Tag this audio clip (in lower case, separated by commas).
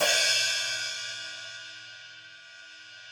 cymbal, musical instrument, hi-hat, music, percussion